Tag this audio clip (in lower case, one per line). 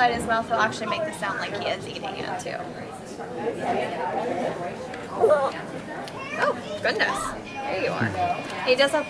speech